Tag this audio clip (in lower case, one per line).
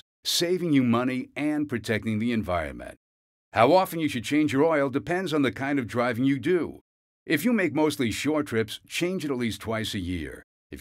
speech